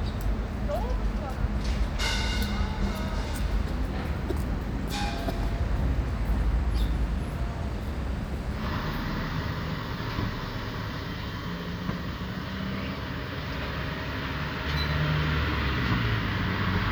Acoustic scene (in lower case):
street